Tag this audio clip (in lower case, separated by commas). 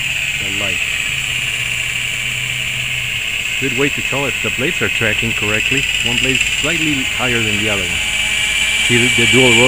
helicopter